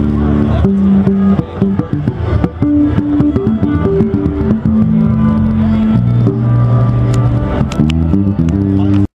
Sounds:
Speech, Music, Guitar, Musical instrument, playing bass guitar, Strum, Plucked string instrument, Bass guitar

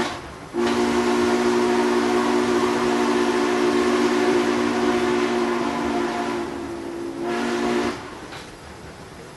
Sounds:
train whistling

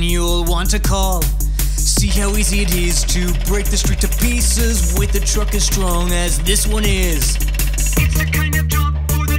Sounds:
Music

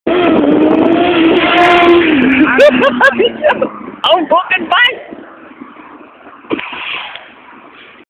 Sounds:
Vehicle, Speech

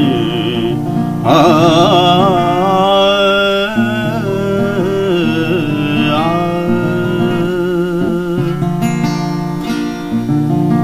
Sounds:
Music

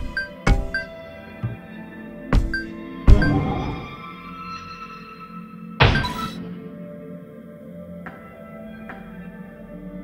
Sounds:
Glockenspiel, Mallet percussion, xylophone

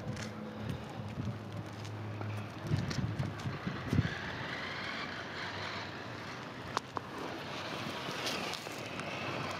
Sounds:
outside, urban or man-made, Vehicle

